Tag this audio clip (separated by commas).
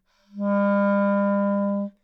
Musical instrument, Music, woodwind instrument